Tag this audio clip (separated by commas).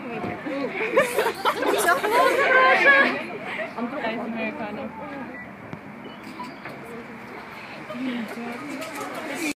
Speech